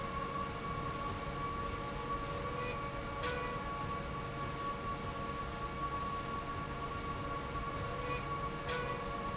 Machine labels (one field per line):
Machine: slide rail